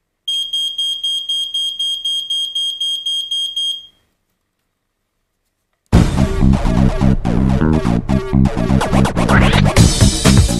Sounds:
alarm
music

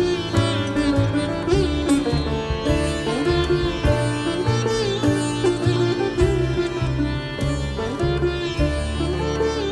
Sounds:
pizzicato

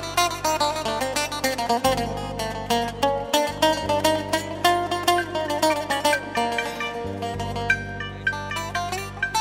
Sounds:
music
plucked string instrument

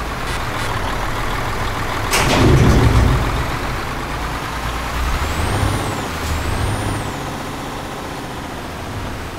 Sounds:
vehicle
truck

